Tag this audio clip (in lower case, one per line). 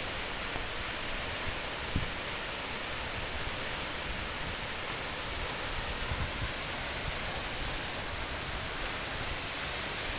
stream
stream burbling